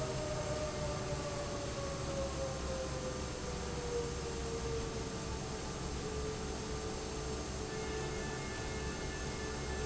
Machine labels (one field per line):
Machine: fan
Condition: normal